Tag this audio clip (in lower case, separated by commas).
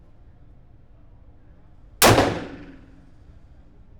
explosion, gunfire